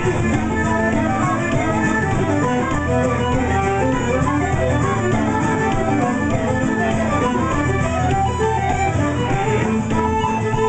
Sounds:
Disco, Music

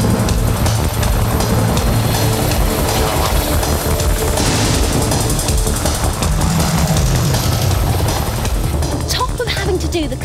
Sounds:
Music, Vehicle, Helicopter, Speech

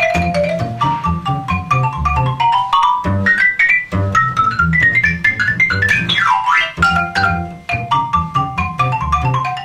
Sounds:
Music, Percussion, Musical instrument, xylophone

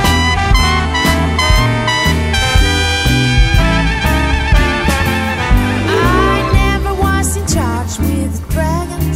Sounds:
Music, Swing music

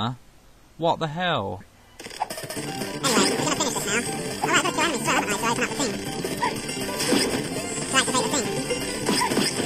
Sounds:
Speech, outside, rural or natural, Music

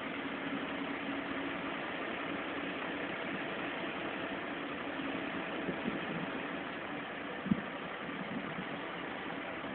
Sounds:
Vehicle

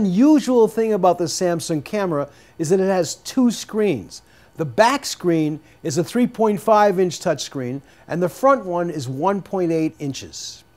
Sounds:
Speech

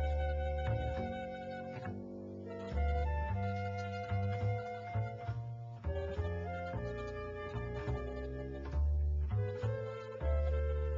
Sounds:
Music

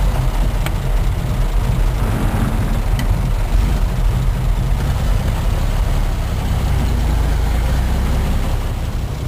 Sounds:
Car, Vehicle

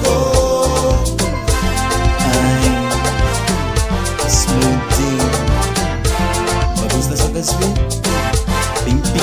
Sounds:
Music, Speech

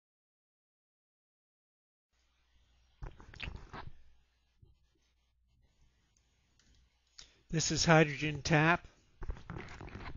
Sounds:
Speech

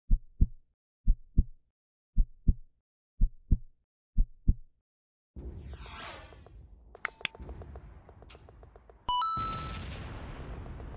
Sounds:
heartbeat

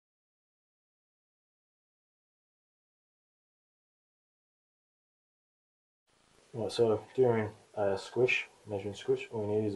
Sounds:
Speech

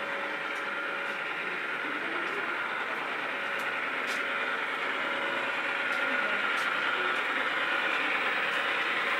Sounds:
Vehicle

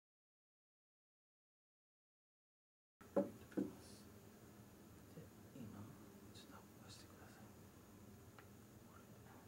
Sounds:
Speech

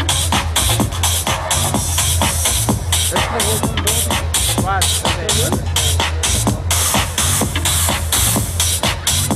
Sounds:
Music, Speech

